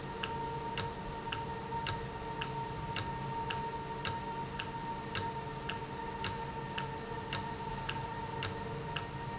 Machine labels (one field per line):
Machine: valve